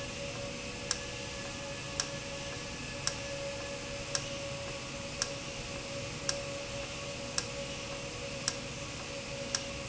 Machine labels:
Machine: valve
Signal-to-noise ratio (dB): -6 dB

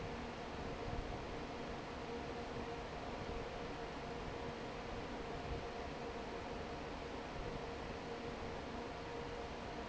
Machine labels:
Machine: fan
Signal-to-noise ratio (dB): 6 dB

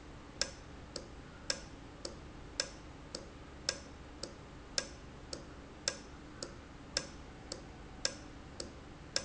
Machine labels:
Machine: valve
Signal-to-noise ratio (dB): 6 dB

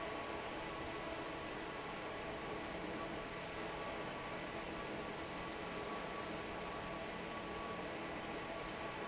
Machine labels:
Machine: fan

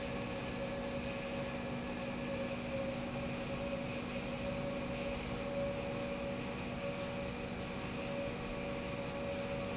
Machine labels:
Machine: pump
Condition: normal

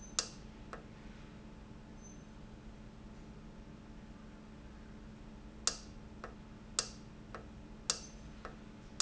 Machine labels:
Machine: valve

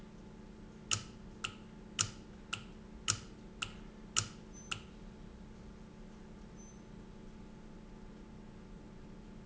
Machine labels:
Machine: valve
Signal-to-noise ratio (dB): 6 dB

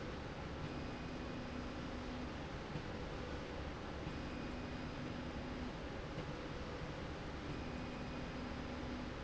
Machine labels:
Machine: slide rail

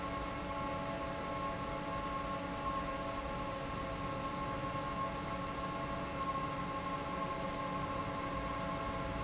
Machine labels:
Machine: fan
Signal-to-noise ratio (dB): -6 dB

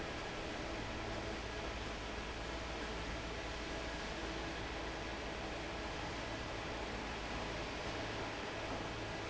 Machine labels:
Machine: fan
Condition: normal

